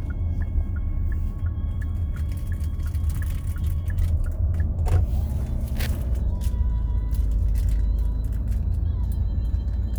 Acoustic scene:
car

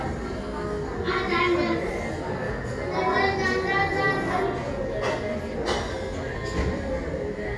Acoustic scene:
cafe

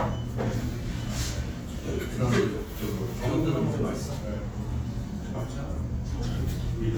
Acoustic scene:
restaurant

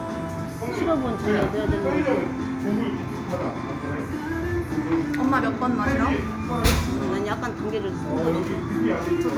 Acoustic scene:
cafe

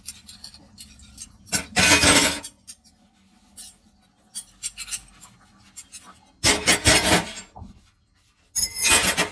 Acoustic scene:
kitchen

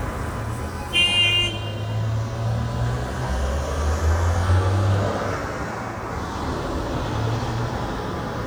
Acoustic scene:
street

